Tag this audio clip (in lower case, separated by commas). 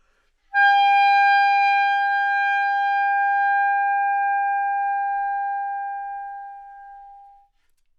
woodwind instrument, musical instrument, music